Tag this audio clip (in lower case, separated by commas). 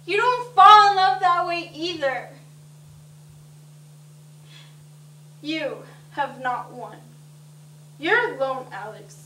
monologue, speech